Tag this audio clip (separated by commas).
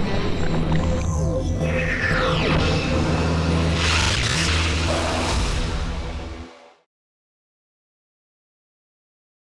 Squish, Music